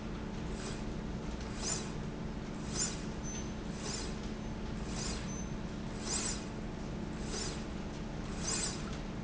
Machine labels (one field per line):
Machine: slide rail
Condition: normal